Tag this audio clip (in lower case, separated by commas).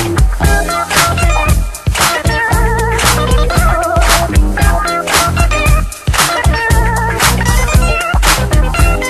music, funk